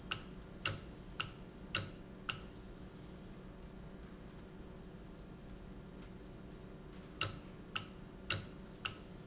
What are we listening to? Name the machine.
valve